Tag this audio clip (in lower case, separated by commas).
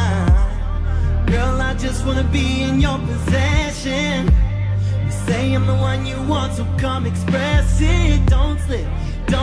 pop music